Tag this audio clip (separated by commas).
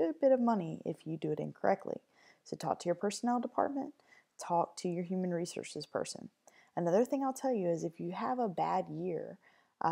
Speech